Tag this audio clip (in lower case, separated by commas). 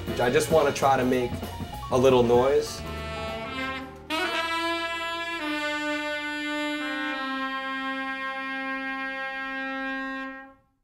brass instrument, saxophone